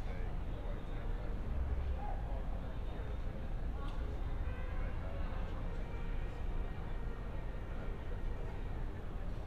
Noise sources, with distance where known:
music from an unclear source, far; person or small group talking, near

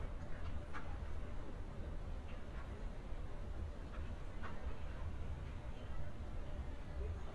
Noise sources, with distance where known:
background noise

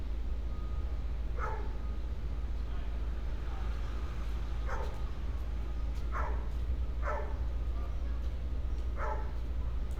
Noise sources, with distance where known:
dog barking or whining, far

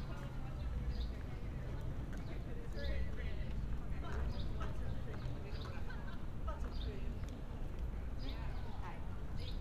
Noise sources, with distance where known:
unidentified human voice

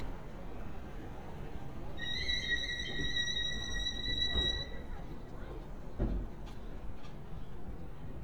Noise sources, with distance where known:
unidentified alert signal, near

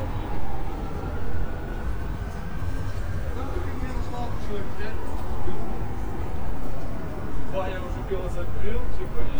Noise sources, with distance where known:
siren; person or small group talking, near

